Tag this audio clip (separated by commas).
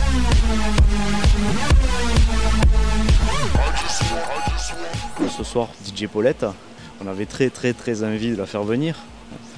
Music, Speech